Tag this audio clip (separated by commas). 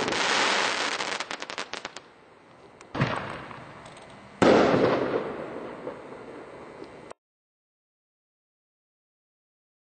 Fireworks